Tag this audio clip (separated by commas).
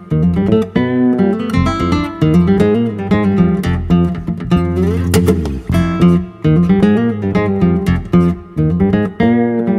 Bass guitar, Plucked string instrument, Strum, Guitar, Musical instrument, Music, Acoustic guitar